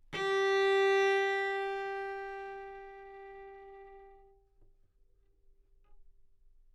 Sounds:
bowed string instrument
music
musical instrument

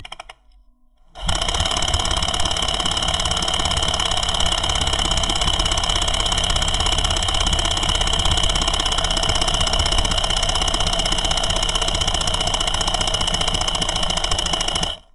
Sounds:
tools

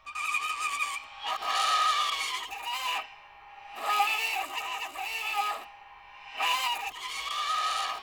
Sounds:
screech

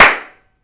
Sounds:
clapping
hands

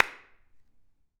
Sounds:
clapping
hands

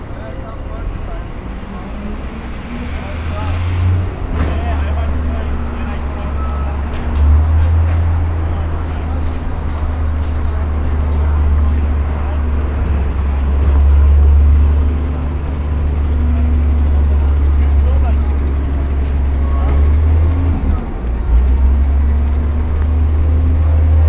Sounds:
truck
vehicle
motor vehicle (road)

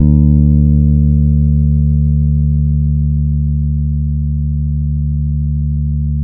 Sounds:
guitar
plucked string instrument
bass guitar
musical instrument
music

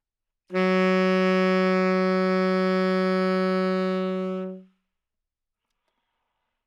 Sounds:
woodwind instrument
music
musical instrument

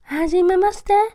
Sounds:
human voice

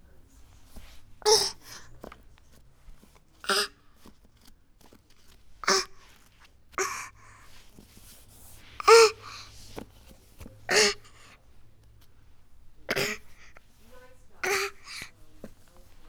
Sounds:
human voice

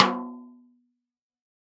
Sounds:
musical instrument
snare drum
percussion
music
drum

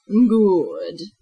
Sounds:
human voice
woman speaking
speech

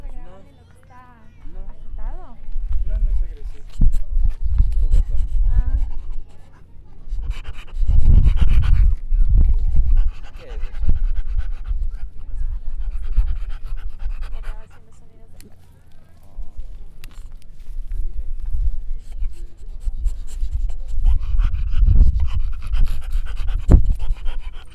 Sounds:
dog
animal
domestic animals

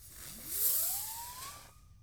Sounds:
explosion
fireworks

